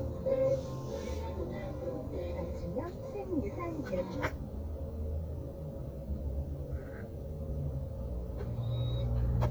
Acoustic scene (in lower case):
car